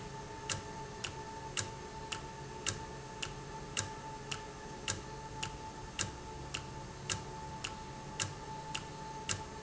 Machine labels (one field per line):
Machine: valve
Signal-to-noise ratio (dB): 0 dB